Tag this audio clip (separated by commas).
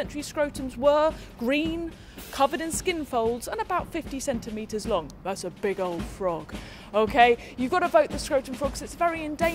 Music, Speech